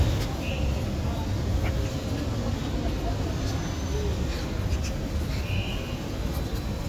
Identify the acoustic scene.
residential area